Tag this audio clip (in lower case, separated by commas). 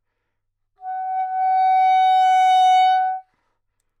music, musical instrument, woodwind instrument